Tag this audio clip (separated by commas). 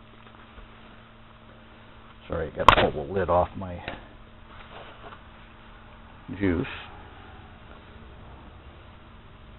Speech